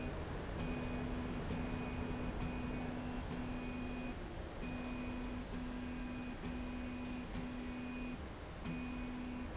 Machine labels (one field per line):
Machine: slide rail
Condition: normal